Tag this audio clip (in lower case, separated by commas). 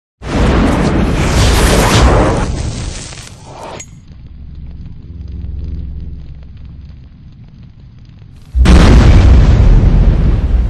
music